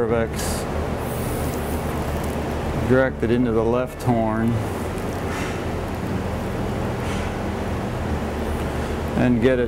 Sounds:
Music, Speech

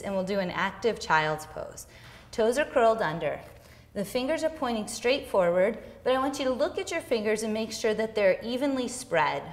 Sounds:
Speech

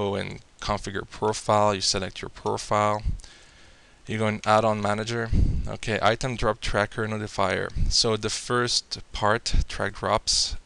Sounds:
Speech

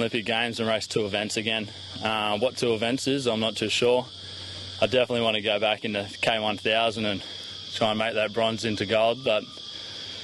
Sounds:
Speech

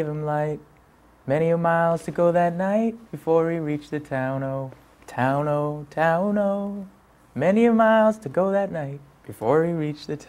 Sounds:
Male singing

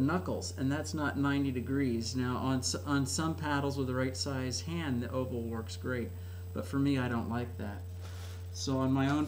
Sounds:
Speech

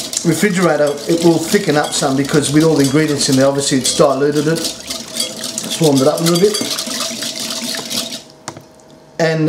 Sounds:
Stir

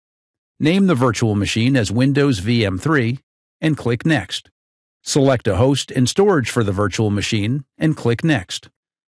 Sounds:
Speech

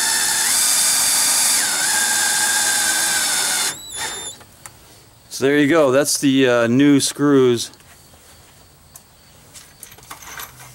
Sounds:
Tools, Power tool

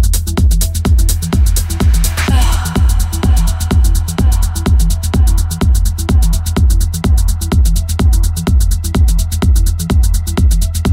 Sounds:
Music, Electronic music, Techno

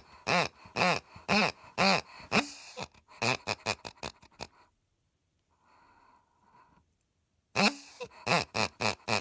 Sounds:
pig oinking

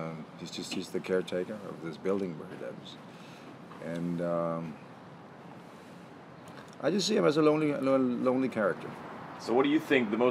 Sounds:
Speech

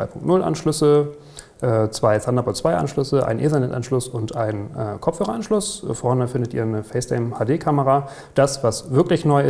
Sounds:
Speech

